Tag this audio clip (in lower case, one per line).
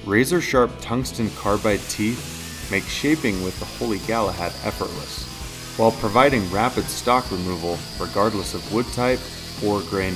tools
power tool